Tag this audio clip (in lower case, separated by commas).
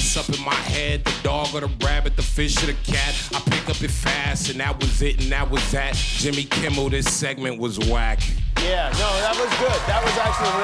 rapping